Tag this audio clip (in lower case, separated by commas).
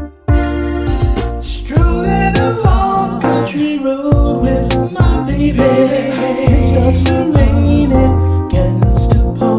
singing, music, pop music